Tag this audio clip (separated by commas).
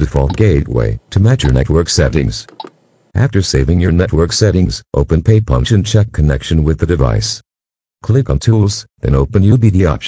Speech